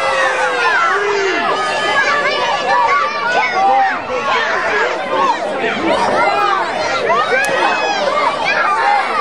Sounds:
speech

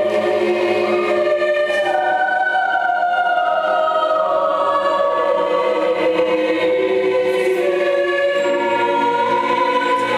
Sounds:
music, choir

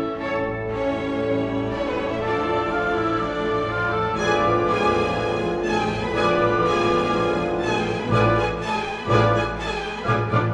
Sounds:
musical instrument, fiddle, music

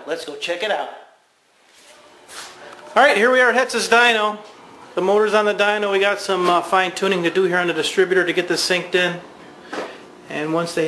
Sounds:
inside a large room or hall, speech

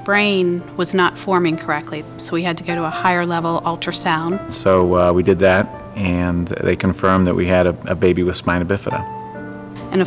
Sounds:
speech, music

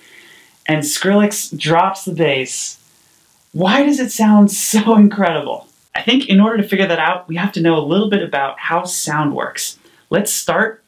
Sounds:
speech

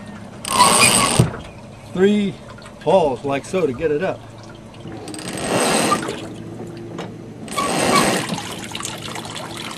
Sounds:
drip, outside, rural or natural, vehicle, boat, speech

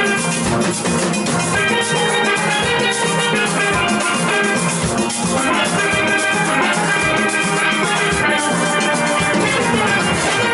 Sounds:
music

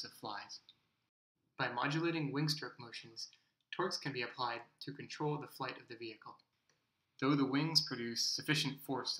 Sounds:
speech

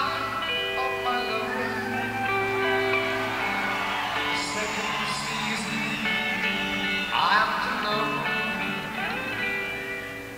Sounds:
speech, music

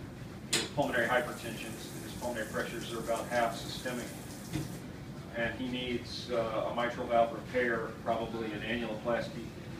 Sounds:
speech

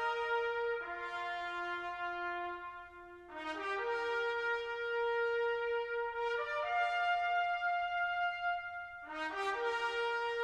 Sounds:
music, brass instrument, french horn

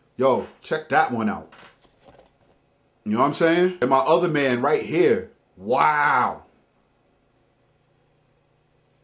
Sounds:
speech

